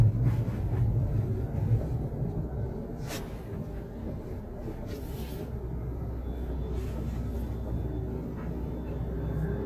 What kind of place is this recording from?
car